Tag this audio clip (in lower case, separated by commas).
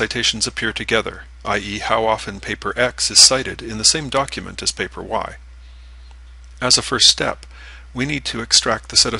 speech